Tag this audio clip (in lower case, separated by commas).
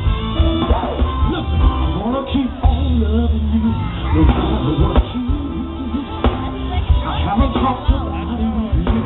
speech, music, singing